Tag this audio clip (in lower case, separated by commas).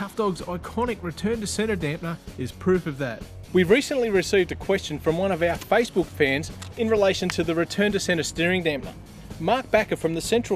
music, speech